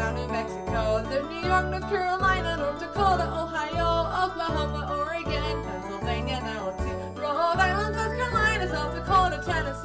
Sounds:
Female singing, Music

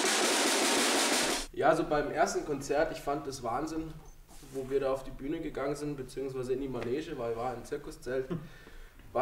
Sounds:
Music, Percussion, Speech

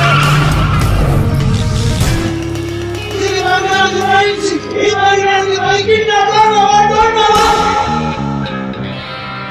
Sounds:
Music, Speech

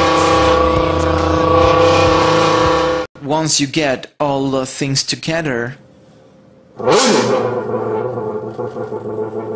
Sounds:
Speech

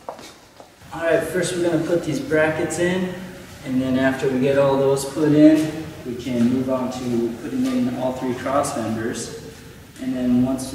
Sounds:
Speech

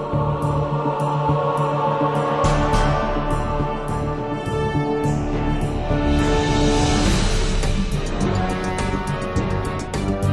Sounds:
Music

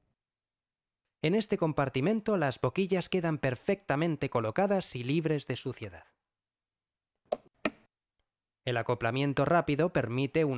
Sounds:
Speech

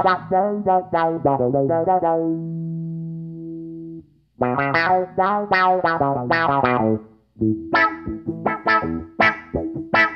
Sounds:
Distortion, Music

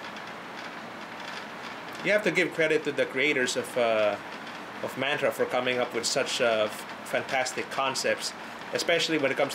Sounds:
Speech

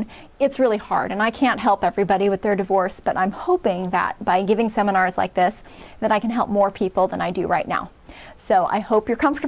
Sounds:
Speech

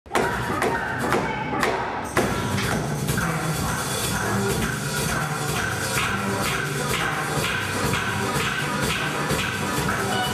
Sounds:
thud, Music

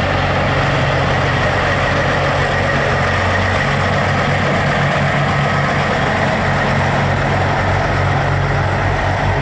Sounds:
Truck, Vehicle

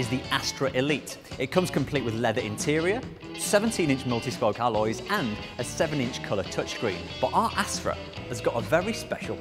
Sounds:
Music, Speech

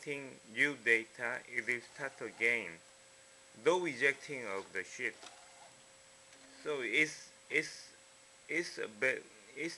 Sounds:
Printer, Speech

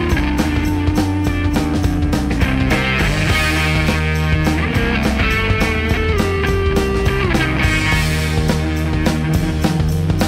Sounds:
Music

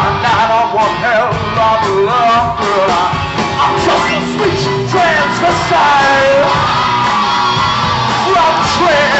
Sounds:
Music, Progressive rock, Heavy metal, Punk rock, Rock and roll, Grunge

